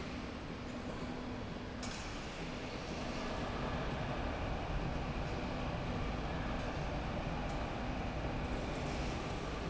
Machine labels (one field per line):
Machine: slide rail